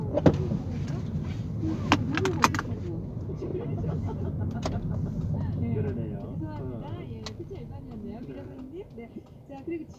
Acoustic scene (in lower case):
car